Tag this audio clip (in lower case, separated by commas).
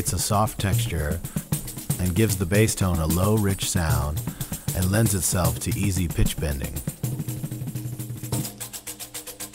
speech, tambourine, musical instrument, music, drum